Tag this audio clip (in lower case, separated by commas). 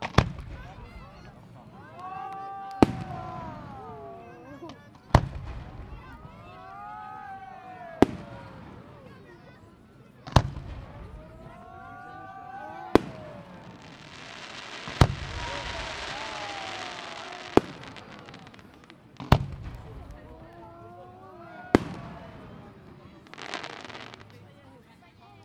fireworks, explosion